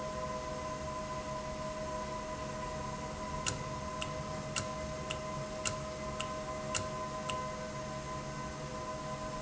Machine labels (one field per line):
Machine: valve